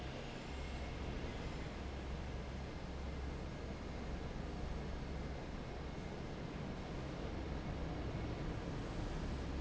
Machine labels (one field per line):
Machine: fan